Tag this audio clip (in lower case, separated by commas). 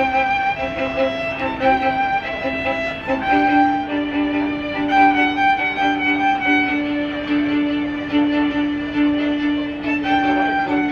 music, violin, musical instrument